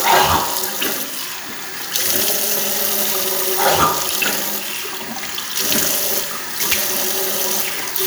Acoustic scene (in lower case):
restroom